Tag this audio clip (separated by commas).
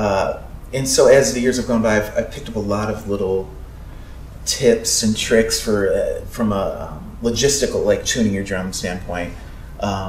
Speech